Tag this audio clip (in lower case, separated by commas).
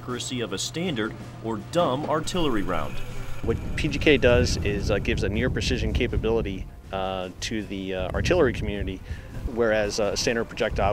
speech, outside, rural or natural